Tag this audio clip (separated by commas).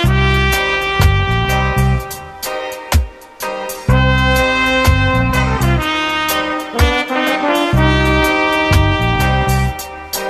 Music